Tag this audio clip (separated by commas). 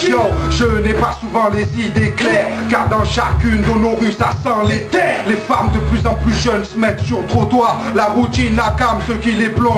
Music